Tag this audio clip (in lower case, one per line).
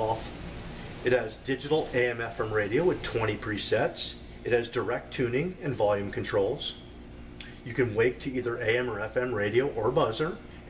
speech